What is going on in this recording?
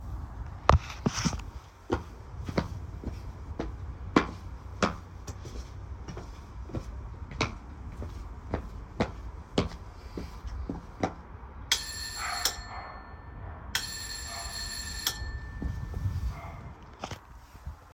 The phone is sitting outside on the floor. I walk around it towards the door, creating audible footsteps. I ring the doorbell a few times.